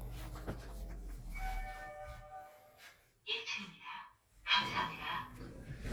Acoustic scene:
elevator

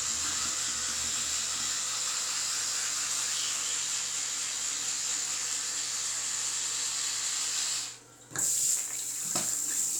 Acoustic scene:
restroom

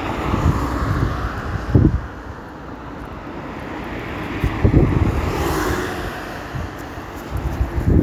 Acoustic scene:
street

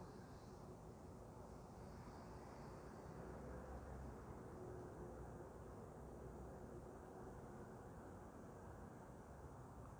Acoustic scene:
street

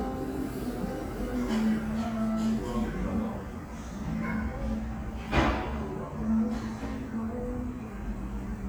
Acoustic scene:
restaurant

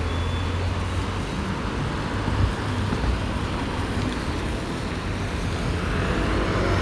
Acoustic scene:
street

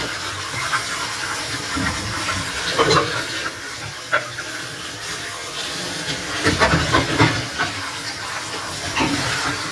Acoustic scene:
kitchen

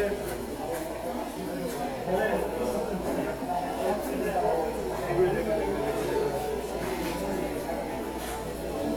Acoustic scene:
subway station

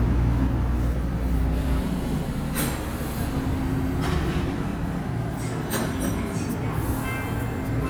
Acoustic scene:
subway station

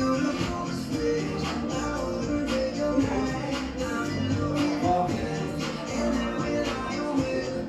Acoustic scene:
cafe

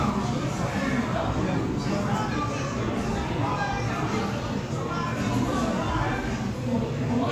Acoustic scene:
crowded indoor space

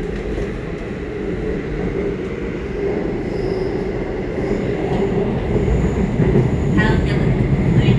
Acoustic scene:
subway train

